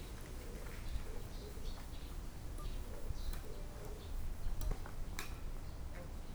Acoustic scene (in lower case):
park